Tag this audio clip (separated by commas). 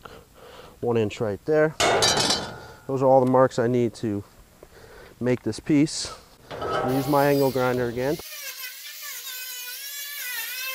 Speech, outside, rural or natural